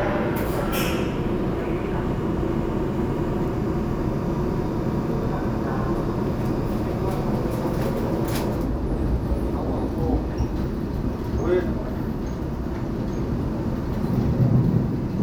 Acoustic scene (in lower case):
subway train